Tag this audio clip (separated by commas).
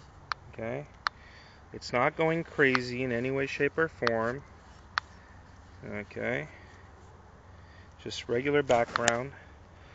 Speech